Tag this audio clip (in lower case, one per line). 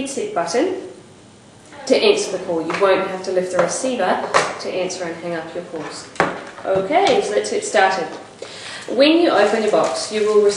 speech